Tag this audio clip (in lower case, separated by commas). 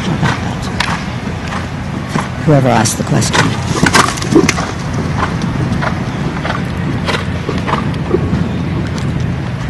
animal, outside, urban or man-made, speech, horse